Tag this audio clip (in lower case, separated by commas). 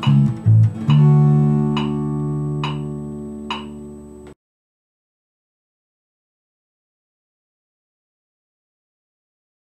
bass guitar, music, guitar, plucked string instrument, musical instrument